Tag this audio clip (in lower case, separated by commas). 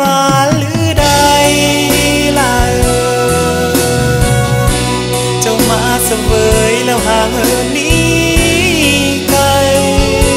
singing, music